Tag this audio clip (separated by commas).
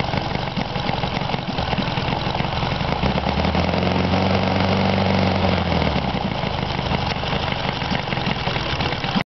Engine